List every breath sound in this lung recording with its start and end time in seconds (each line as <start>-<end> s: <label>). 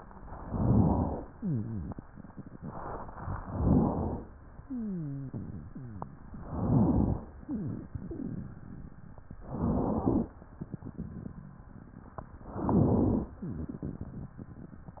0.34-1.22 s: inhalation
1.31-2.05 s: wheeze
3.38-4.25 s: inhalation
4.59-6.17 s: wheeze
6.41-7.29 s: inhalation
7.42-8.99 s: wheeze
9.47-10.34 s: inhalation
10.59-11.77 s: wheeze
12.48-13.36 s: inhalation
13.47-14.65 s: wheeze